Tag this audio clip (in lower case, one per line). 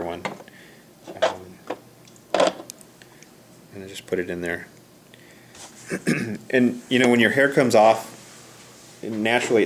speech